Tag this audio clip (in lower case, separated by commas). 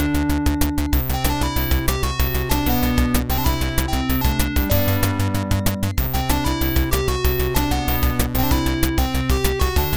rhythm and blues, music